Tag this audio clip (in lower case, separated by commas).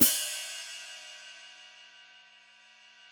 hi-hat, cymbal, music, musical instrument, percussion